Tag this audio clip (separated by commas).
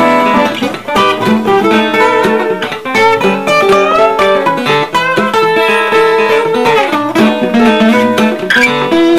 Bowed string instrument, Plucked string instrument, Guitar, Acoustic guitar, Music, Blues, Musical instrument